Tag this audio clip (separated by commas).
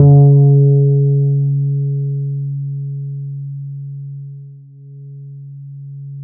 Bass guitar, Musical instrument, Music, Guitar, Plucked string instrument